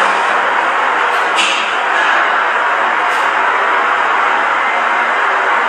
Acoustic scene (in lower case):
elevator